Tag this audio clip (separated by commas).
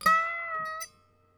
Harp, Music, Musical instrument